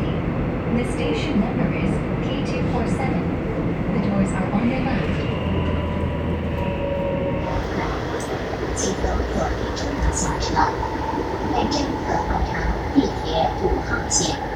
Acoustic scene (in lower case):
subway train